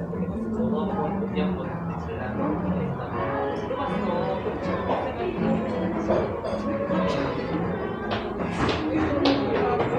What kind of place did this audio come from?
cafe